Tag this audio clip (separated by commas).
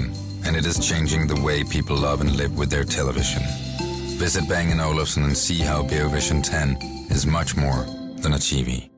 Speech, Music